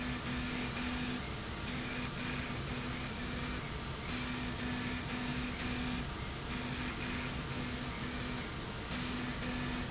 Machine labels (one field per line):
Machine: slide rail